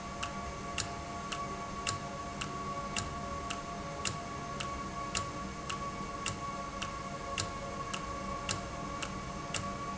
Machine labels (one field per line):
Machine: valve